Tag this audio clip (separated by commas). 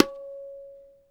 Tabla, Percussion, Drum, Music, Musical instrument